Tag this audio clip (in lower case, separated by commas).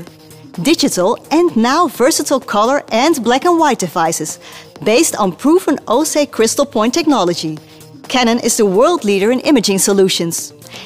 music, speech